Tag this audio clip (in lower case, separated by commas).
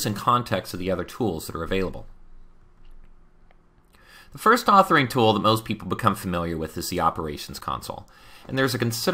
speech